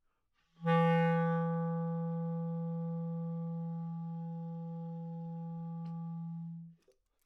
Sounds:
music
musical instrument
woodwind instrument

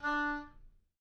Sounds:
music
woodwind instrument
musical instrument

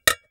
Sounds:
domestic sounds
dishes, pots and pans

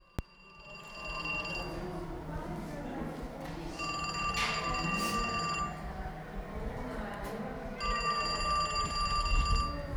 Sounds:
alarm
telephone

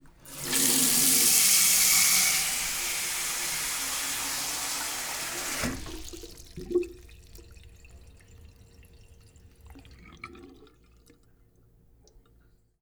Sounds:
domestic sounds
water tap
sink (filling or washing)

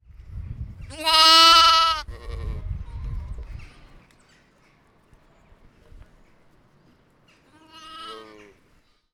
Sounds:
animal
livestock

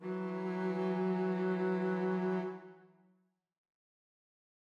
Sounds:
musical instrument
music
bowed string instrument

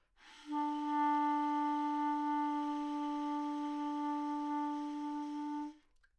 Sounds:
musical instrument
wind instrument
music

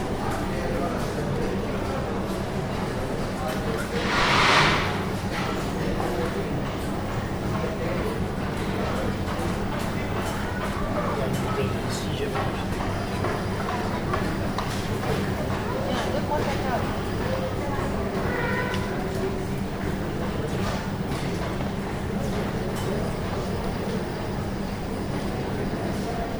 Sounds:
water vehicle
vehicle

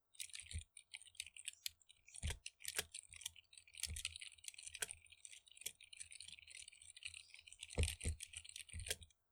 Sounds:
typing
domestic sounds

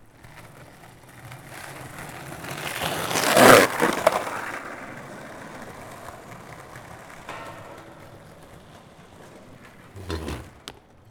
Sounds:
skateboard
vehicle

